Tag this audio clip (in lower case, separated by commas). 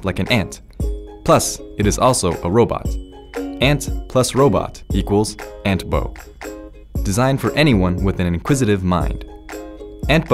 music, speech